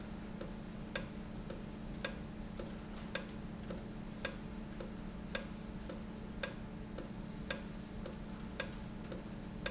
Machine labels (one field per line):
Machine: valve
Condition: normal